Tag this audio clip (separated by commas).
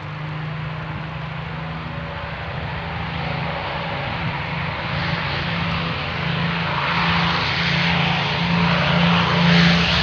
airscrew, Vehicle